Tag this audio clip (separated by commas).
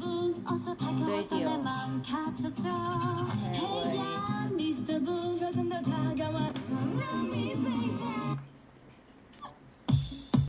Speech, Music